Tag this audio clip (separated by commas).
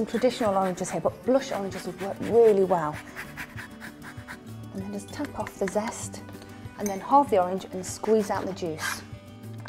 Music, Speech